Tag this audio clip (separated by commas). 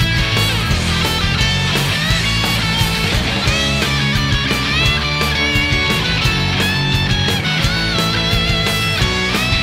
Music